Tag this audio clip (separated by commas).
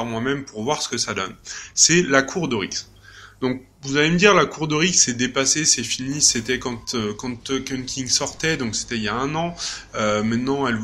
Speech